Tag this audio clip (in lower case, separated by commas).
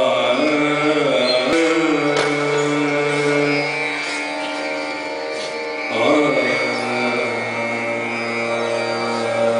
music, classical music